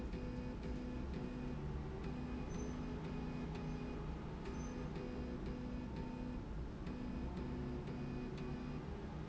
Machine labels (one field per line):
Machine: slide rail